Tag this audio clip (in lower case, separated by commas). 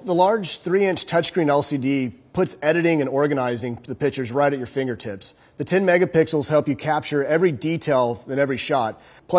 speech